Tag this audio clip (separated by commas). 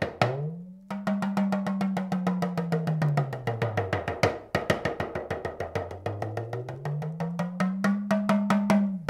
playing djembe